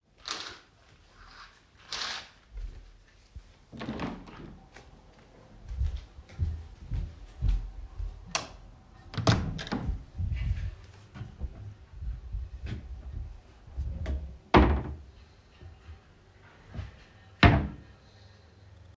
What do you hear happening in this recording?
I opened the curtains then opened my window. I walked across the room opened the door and then the wardrobe doors and closed them again.